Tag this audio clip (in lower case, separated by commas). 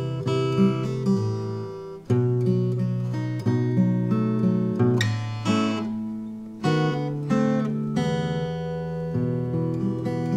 playing acoustic guitar, musical instrument, strum, guitar, acoustic guitar, music, plucked string instrument